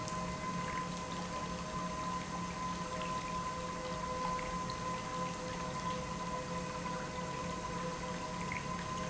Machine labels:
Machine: pump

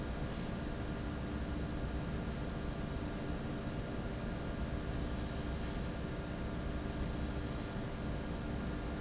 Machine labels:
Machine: fan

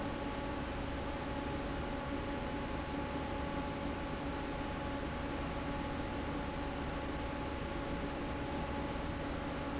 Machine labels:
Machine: fan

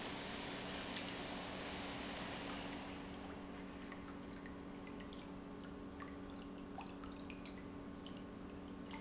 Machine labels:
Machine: pump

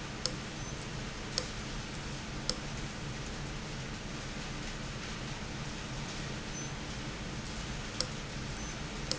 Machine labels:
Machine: valve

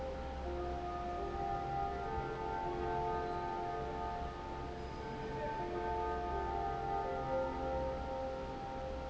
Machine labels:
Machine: fan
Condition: normal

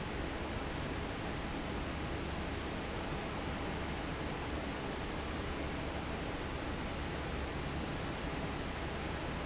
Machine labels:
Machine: fan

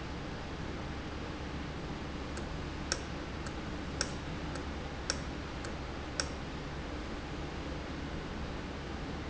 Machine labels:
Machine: valve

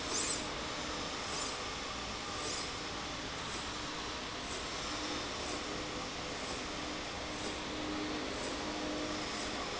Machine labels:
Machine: slide rail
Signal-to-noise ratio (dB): -6 dB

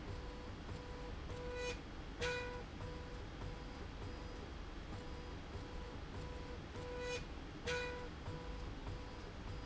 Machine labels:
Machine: slide rail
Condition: normal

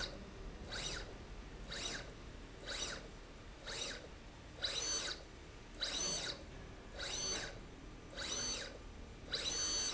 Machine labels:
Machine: slide rail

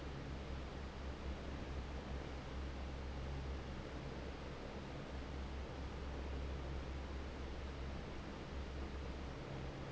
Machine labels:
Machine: fan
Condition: normal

